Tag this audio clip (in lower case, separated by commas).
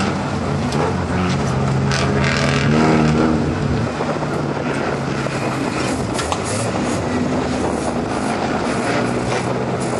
car, vehicle, outside, rural or natural, auto racing